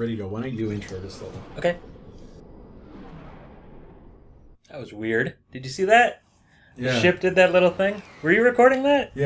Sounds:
speech

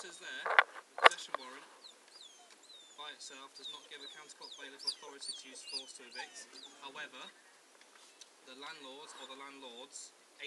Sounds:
speech

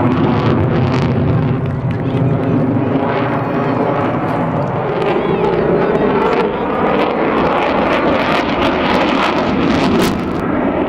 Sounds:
airplane flyby

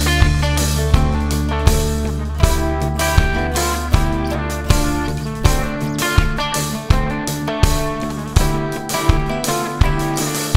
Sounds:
music
new-age music

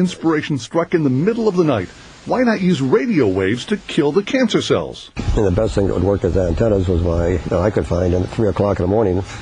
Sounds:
speech

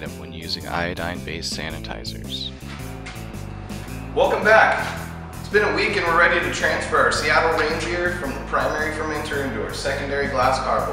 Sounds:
music
speech

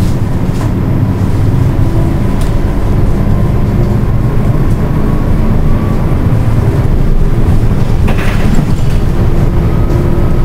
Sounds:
rail transport
train

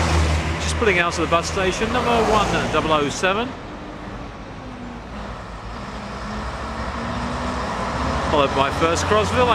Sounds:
mechanical fan
vehicle
bus

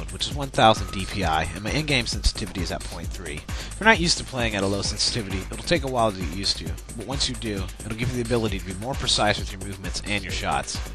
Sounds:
music
speech

